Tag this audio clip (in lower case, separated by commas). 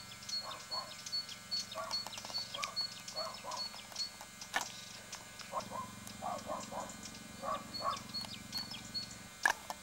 animal, pets